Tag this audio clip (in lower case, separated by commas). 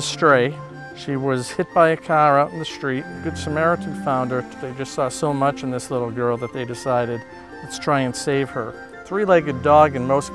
music, speech